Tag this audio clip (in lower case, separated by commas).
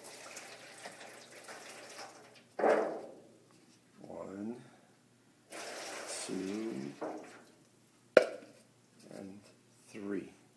speech